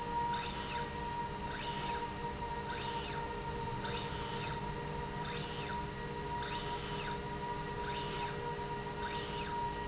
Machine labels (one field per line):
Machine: slide rail